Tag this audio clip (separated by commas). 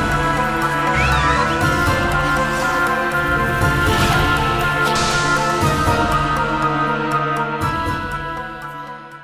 Music